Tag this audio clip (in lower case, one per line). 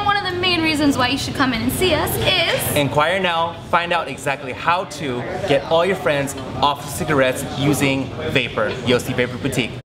speech